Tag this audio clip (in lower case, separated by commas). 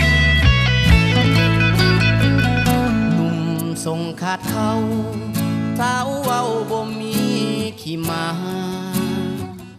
independent music, country, new-age music, music, middle eastern music